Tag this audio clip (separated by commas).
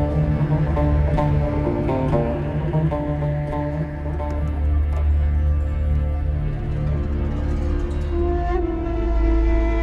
Music, Background music